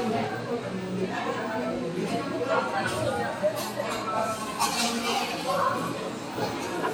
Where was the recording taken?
in a cafe